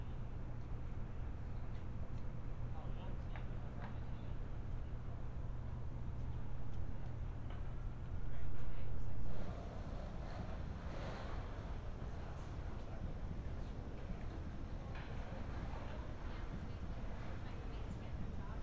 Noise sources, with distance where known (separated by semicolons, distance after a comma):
person or small group talking